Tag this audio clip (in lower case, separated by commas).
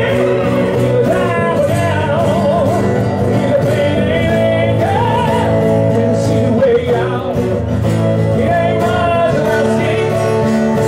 exciting music, music